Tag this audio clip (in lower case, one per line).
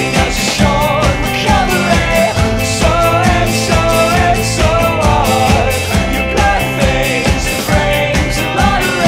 music